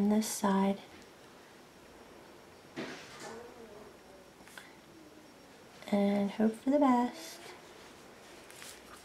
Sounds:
inside a small room, speech

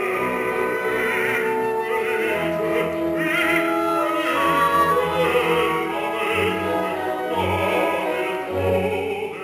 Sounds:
classical music, opera, singing, choir, music

